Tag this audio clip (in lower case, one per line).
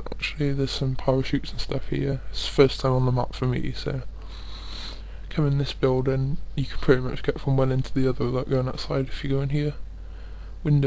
speech